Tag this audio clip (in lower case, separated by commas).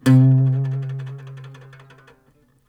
plucked string instrument, musical instrument, acoustic guitar, guitar, music